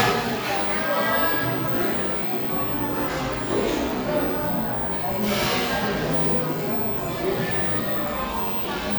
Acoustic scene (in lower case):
cafe